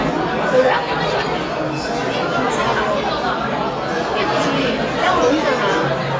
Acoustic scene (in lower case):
restaurant